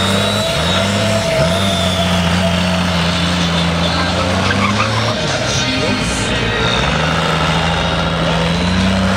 Humming of an engine as tires squeal with wind blowing and music playing